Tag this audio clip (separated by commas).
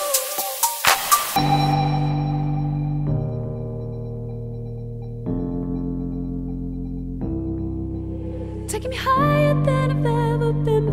Ambient music